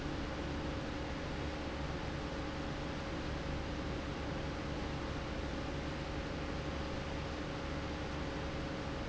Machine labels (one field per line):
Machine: fan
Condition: abnormal